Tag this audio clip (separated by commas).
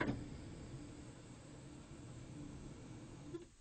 Printer, Mechanisms